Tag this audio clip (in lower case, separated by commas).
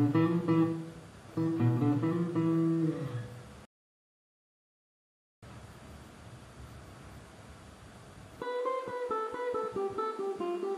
music, guitar, strum, musical instrument, plucked string instrument, acoustic guitar